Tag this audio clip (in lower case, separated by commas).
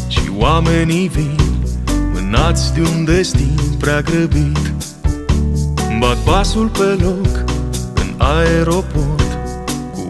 music, soul music